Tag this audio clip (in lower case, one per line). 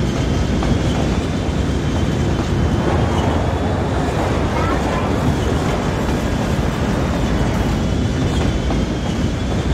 speech
train